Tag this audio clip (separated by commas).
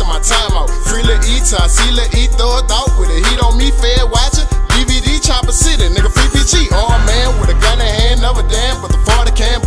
Music